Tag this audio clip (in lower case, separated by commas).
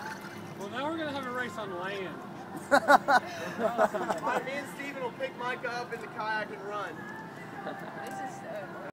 speech, music